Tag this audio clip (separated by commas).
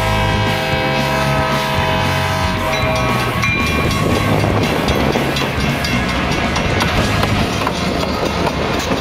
Music